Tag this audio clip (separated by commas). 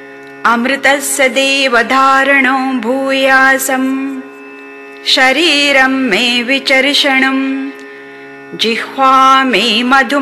Mantra